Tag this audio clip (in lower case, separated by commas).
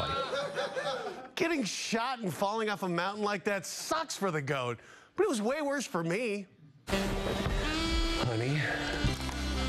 speech, music